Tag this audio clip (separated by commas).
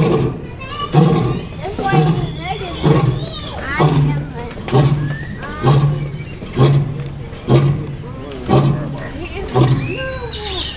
lions roaring